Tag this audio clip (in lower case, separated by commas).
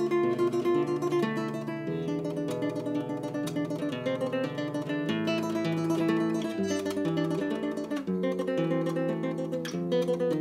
guitar, plucked string instrument, acoustic guitar, music, musical instrument